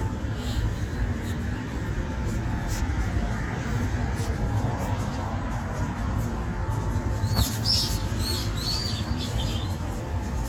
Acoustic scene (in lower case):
residential area